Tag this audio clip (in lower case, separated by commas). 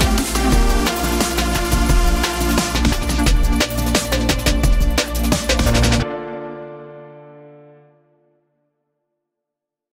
music